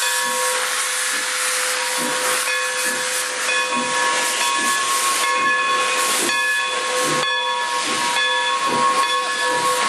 Loud bell clanging and steam train hiss